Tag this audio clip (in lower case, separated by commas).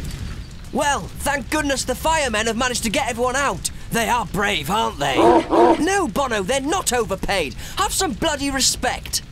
speech, animal, dog, pets, bow-wow